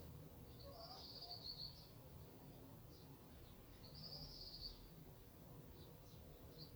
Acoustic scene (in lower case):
park